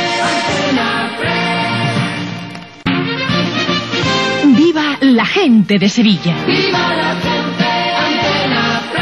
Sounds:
Speech, Music

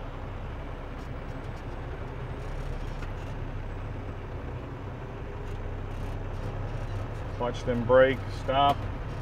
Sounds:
Vehicle, Speech

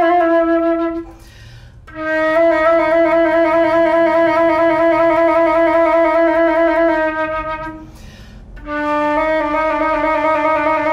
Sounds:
playing flute

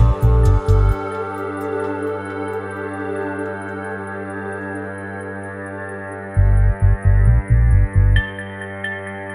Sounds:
Music, Harmonic

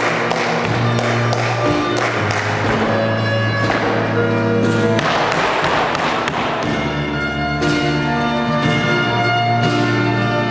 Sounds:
Flamenco, Music of Latin America, Music

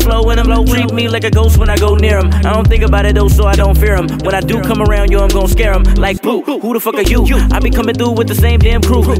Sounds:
Music

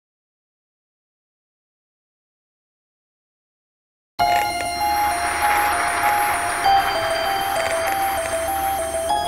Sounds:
Music

